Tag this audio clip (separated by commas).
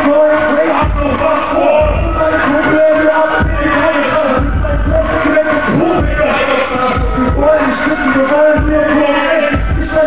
Music, Speech